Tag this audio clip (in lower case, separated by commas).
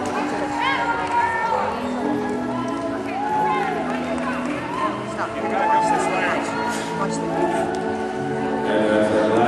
clip-clop, music, speech